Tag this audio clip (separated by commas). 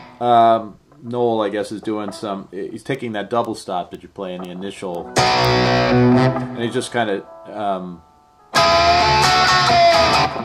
Speech, Guitar, Music, Plucked string instrument, Musical instrument